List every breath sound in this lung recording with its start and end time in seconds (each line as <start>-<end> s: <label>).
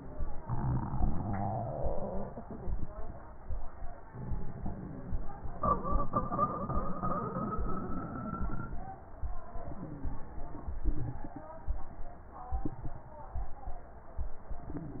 9.69-10.79 s: inhalation
9.69-10.79 s: crackles